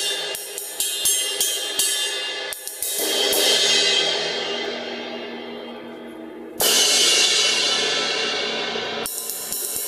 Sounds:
Percussion, Musical instrument, playing cymbal, Cymbal, Hi-hat

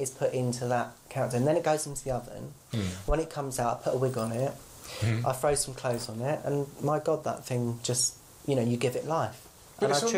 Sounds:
Speech

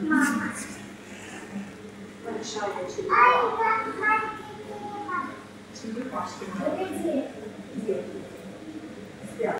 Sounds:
Speech

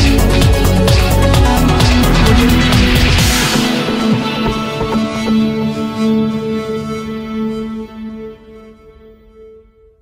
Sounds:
Electronic music, Music

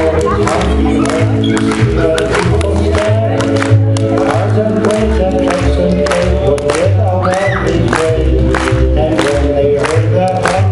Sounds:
Music

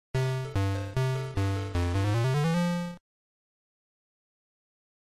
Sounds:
Soundtrack music, Music

